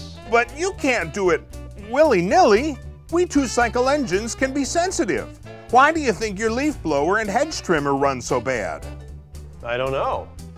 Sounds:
Speech, Music

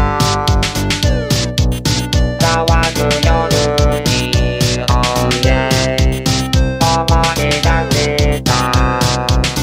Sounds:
Music

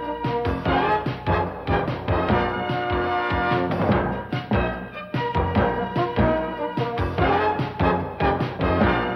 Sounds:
Music

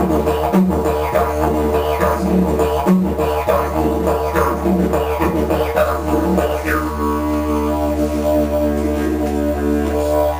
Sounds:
playing didgeridoo

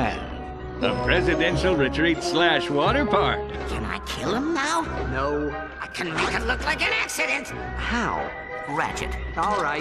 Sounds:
Music, Speech

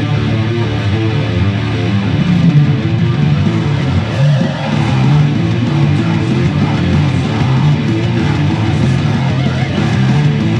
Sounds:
Musical instrument, Music, Plucked string instrument, Guitar

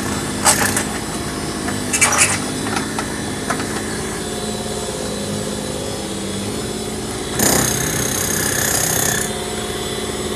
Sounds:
Tools, Engine

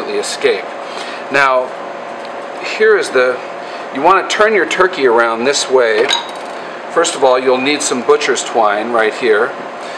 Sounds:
Speech

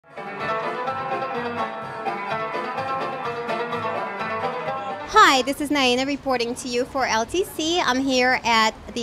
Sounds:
Music, Speech

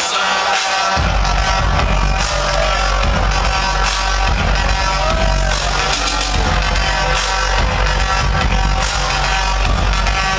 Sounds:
Techno, Music

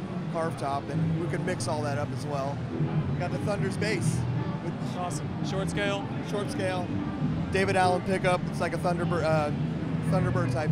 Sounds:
Music, Musical instrument, Speech

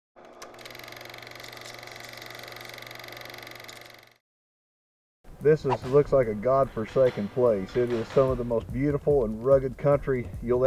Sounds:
Music, Speech

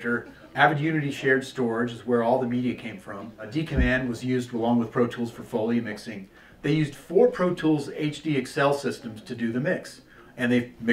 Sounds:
Speech

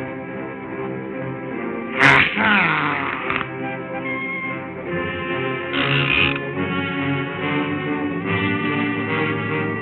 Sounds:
Music

